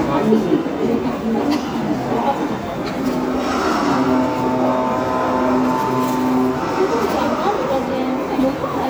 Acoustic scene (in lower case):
subway station